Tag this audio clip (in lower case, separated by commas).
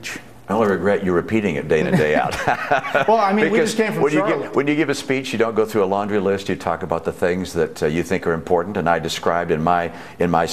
speech, man speaking, conversation